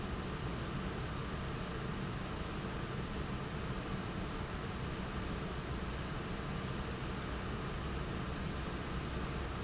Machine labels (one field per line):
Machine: fan